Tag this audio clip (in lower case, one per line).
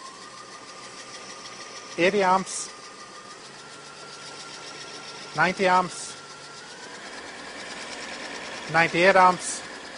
speech